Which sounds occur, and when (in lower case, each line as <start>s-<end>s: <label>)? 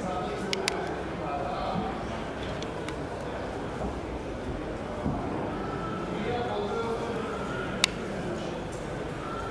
0.0s-9.5s: speech babble
0.0s-9.5s: mechanisms
7.8s-7.9s: tick
9.2s-9.5s: man speaking